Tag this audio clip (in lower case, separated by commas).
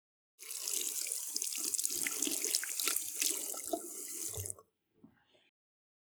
sink (filling or washing), home sounds